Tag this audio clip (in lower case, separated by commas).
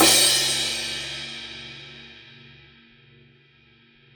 music, crash cymbal, cymbal, musical instrument, percussion